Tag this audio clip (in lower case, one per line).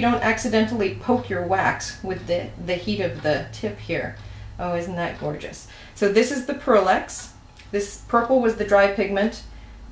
speech